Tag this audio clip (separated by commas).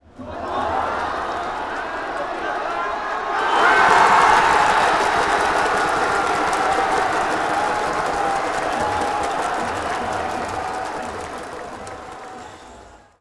Human group actions, Crowd